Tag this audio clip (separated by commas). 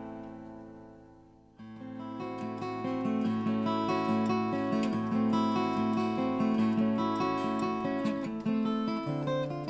Guitar, Music